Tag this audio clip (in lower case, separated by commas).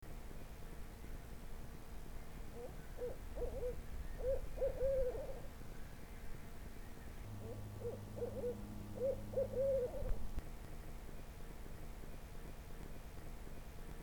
bird, wild animals, animal